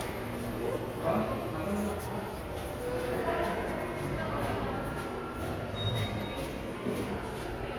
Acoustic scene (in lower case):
subway station